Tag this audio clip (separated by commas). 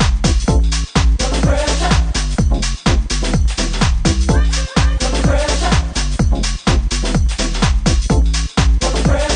Music